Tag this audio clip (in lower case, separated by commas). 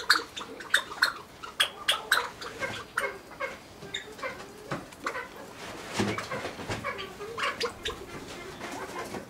pheasant crowing